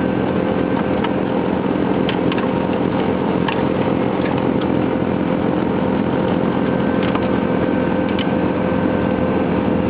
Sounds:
Vehicle

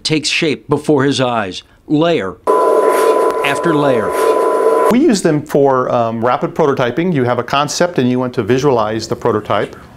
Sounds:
Speech

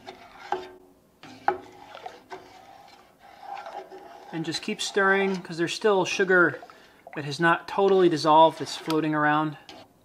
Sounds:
Speech

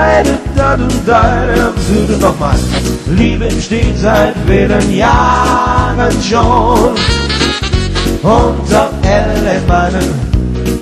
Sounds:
Exciting music, Blues, Rhythm and blues, Music

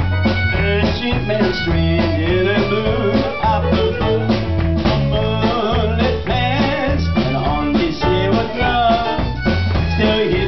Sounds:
Country, Music

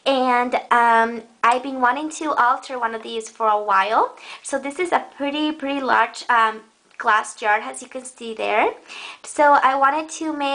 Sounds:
Speech

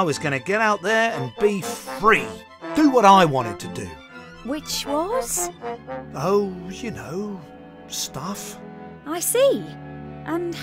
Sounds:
Speech, Music

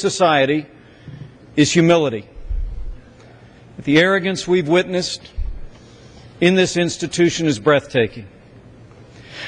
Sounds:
Speech, Male speech, monologue

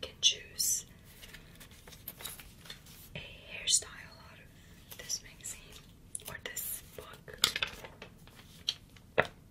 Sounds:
Speech

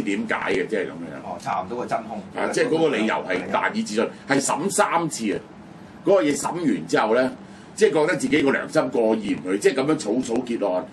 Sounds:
Speech

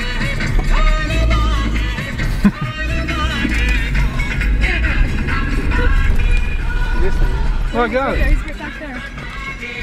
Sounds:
Music, Speech

